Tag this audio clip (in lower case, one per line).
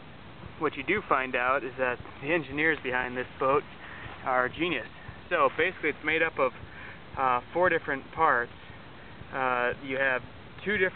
speech